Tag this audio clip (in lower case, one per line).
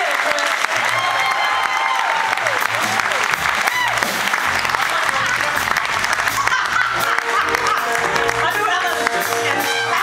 people clapping
applause
singing
music